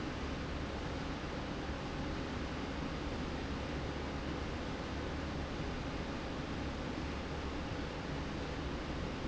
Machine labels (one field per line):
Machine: slide rail